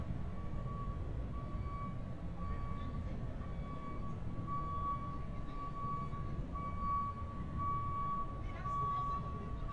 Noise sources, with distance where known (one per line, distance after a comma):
reverse beeper, far
person or small group talking, far